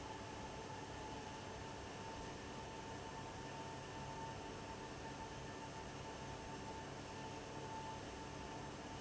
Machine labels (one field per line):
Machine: fan